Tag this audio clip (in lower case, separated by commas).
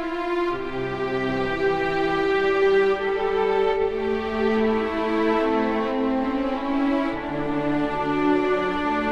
string section